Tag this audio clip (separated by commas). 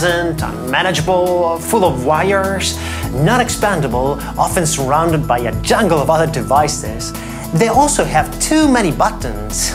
Music, Speech